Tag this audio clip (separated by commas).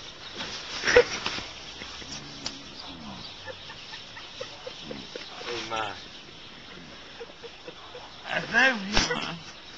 Speech